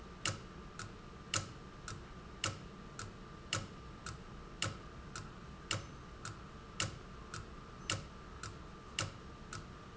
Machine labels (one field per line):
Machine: valve